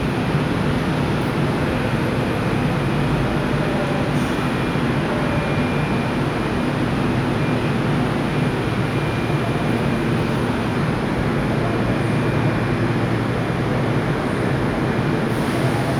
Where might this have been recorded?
in a subway station